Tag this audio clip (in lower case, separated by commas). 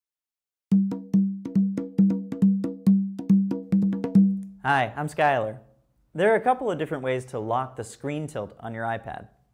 wood block, speech, music